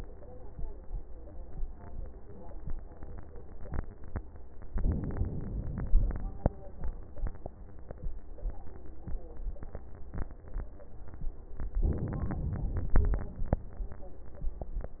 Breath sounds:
4.74-5.92 s: inhalation
5.92-6.49 s: exhalation
11.85-12.97 s: inhalation
12.97-13.62 s: exhalation

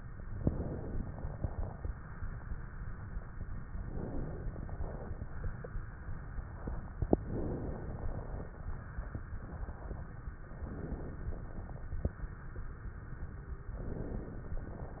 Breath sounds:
0.38-1.88 s: inhalation
3.88-5.38 s: inhalation
7.07-8.57 s: inhalation
10.51-11.85 s: inhalation
13.72-15.00 s: inhalation

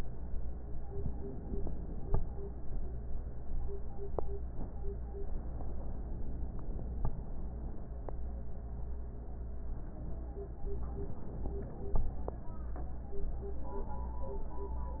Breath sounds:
5.53-7.03 s: inhalation
10.73-12.23 s: inhalation

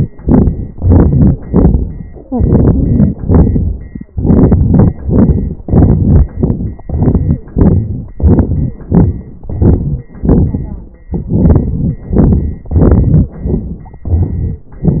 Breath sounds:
0.21-0.72 s: crackles
0.23-0.73 s: exhalation
0.75-1.44 s: inhalation
0.75-1.44 s: crackles
1.47-2.26 s: exhalation
1.47-2.26 s: crackles
2.28-3.23 s: crackles
2.29-3.19 s: inhalation
3.23-4.13 s: exhalation
3.24-4.14 s: crackles
4.14-5.01 s: crackles
4.14-5.07 s: inhalation
5.05-5.63 s: exhalation
5.05-5.63 s: crackles
5.66-6.36 s: inhalation
6.35-6.86 s: exhalation
6.35-6.86 s: crackles
6.86-7.54 s: inhalation
6.88-7.54 s: crackles
7.55-8.14 s: crackles
7.55-8.21 s: exhalation
8.17-8.88 s: inhalation
8.17-8.88 s: crackles
8.88-9.44 s: crackles
8.89-9.49 s: exhalation
9.47-10.11 s: inhalation
9.47-10.11 s: crackles
10.12-10.99 s: exhalation
10.12-10.99 s: crackles
11.02-12.11 s: inhalation
11.02-12.11 s: crackles
12.13-12.65 s: exhalation
12.13-12.65 s: crackles
12.67-13.32 s: inhalation
12.67-13.32 s: crackles
13.33-14.03 s: exhalation
13.33-14.03 s: crackles
14.05-14.74 s: inhalation
14.05-14.74 s: crackles

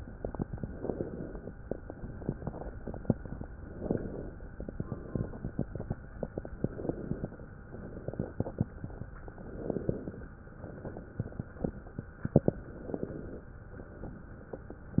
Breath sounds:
0.76-1.54 s: inhalation
1.94-2.71 s: exhalation
3.66-4.44 s: inhalation
4.82-5.60 s: exhalation
6.60-7.38 s: inhalation
7.80-8.67 s: exhalation
9.45-10.32 s: inhalation
10.91-11.78 s: exhalation
12.58-13.45 s: inhalation

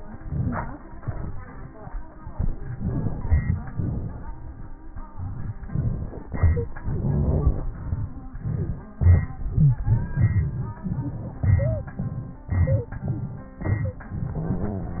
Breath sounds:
11.60-11.91 s: stridor
12.69-13.01 s: stridor
13.77-14.09 s: stridor

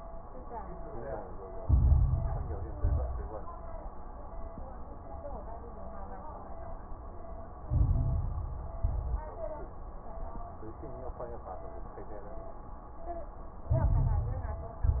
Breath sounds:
1.61-2.73 s: inhalation
1.61-2.73 s: crackles
2.73-3.34 s: exhalation
2.73-3.34 s: crackles
7.68-8.80 s: inhalation
7.68-8.80 s: crackles
8.84-9.44 s: exhalation
8.84-9.44 s: crackles
13.70-14.78 s: inhalation
13.70-14.78 s: crackles
14.80-15.00 s: exhalation
14.80-15.00 s: crackles

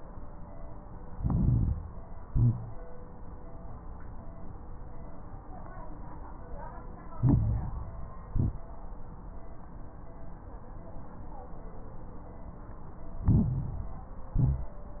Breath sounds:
1.02-1.86 s: inhalation
1.02-1.86 s: crackles
2.20-2.83 s: exhalation
2.20-2.83 s: crackles
7.12-8.19 s: inhalation
7.12-8.19 s: crackles
8.28-8.68 s: exhalation
8.28-8.68 s: crackles
13.21-14.27 s: inhalation
13.21-14.27 s: crackles
14.35-14.88 s: exhalation
14.35-14.88 s: crackles

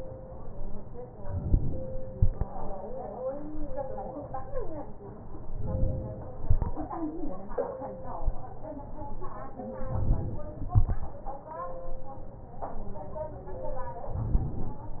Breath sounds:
1.23-2.12 s: inhalation
5.60-6.39 s: inhalation
14.15-14.94 s: inhalation

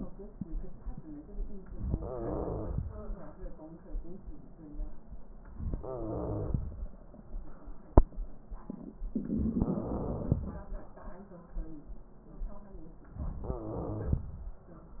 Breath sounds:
1.76-2.84 s: wheeze
1.78-2.86 s: inhalation
5.66-6.60 s: wheeze
5.69-6.59 s: inhalation
9.09-10.44 s: inhalation
9.74-10.42 s: wheeze
13.46-14.28 s: inhalation
13.55-14.22 s: wheeze

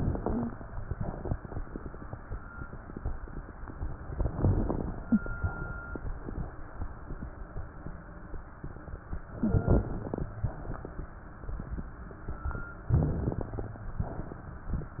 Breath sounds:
4.16-5.03 s: inhalation
4.16-5.03 s: crackles
5.05-5.35 s: wheeze
9.35-9.93 s: wheeze
9.35-10.23 s: inhalation
9.35-10.23 s: crackles
12.92-13.72 s: inhalation
12.92-13.72 s: crackles

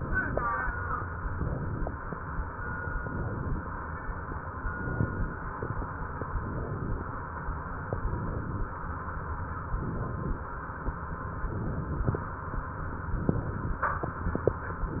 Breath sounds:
0.00-0.48 s: inhalation
1.32-2.08 s: inhalation
2.98-3.75 s: inhalation
4.62-5.39 s: inhalation
6.37-7.13 s: inhalation
7.95-8.71 s: inhalation
9.69-10.46 s: inhalation
11.43-12.20 s: inhalation
13.10-13.86 s: inhalation
14.92-15.00 s: inhalation

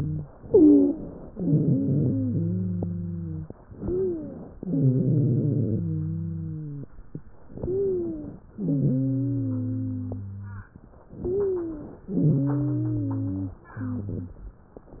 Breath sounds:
0.00-0.30 s: wheeze
0.34-1.27 s: inhalation
0.40-1.04 s: wheeze
1.33-3.49 s: wheeze
3.64-4.57 s: inhalation
3.74-4.38 s: wheeze
4.57-5.81 s: exhalation
4.59-6.89 s: wheeze
7.48-8.41 s: inhalation
7.63-8.35 s: wheeze
8.52-10.72 s: exhalation
8.52-10.72 s: wheeze
11.10-12.03 s: inhalation
11.23-11.96 s: wheeze
12.10-13.70 s: exhalation
12.10-13.70 s: wheeze

